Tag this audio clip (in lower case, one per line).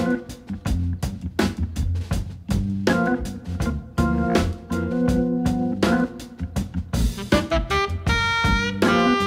drum
musical instrument
keyboard (musical)
music